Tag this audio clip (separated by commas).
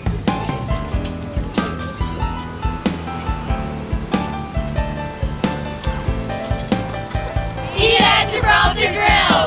Music, Speech